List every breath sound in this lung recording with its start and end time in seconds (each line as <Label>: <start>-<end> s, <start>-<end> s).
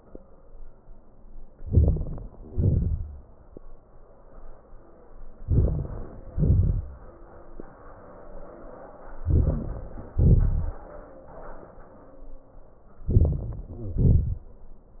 Inhalation: 1.57-2.46 s, 5.42-6.37 s, 9.10-10.16 s, 13.05-13.68 s
Exhalation: 2.47-3.78 s, 6.33-7.75 s, 10.17-11.14 s, 13.70-14.95 s
Crackles: 1.55-2.45 s, 2.45-3.39 s, 5.41-6.31 s, 6.33-7.05 s, 9.10-10.16 s, 13.04-13.66 s, 13.71-14.36 s